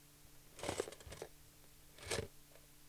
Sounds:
cutlery, domestic sounds

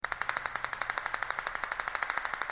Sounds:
rattle

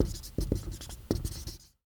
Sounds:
writing, domestic sounds

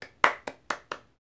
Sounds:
hands, clapping

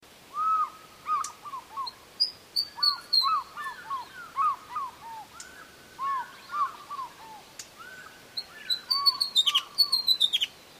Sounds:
animal, wild animals, bird

